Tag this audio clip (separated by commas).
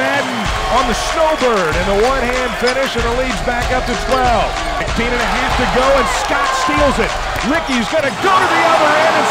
Music, Speech